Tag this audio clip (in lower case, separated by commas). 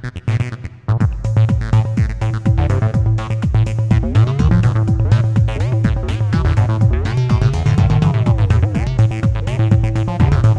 music, electronica